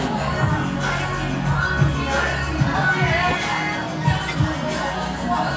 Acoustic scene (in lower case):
cafe